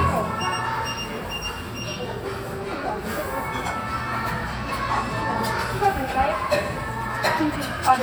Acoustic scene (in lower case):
cafe